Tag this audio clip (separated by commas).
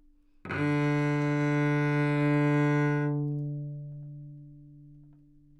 Music, Bowed string instrument, Musical instrument